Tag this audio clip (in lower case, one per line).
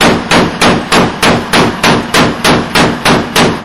gunshot
explosion